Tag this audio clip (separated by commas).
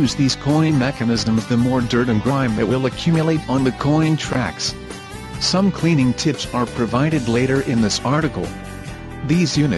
Music, Speech